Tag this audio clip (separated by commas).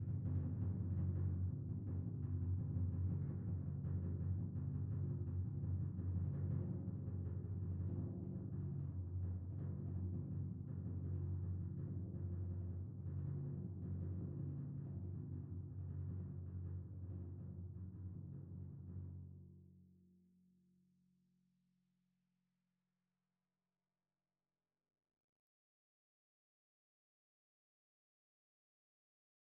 Percussion, Musical instrument, Music, Drum